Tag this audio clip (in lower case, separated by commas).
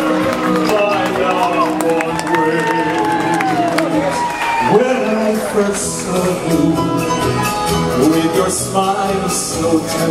male singing, music